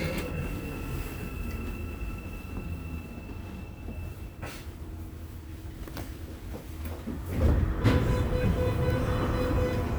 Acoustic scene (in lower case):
subway train